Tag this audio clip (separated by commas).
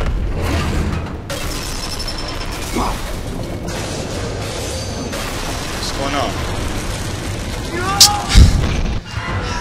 Music, Speech